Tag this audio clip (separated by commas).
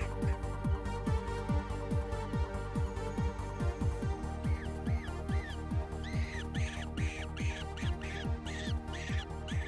Music